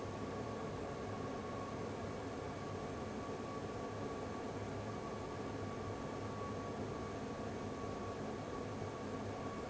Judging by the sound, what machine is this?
fan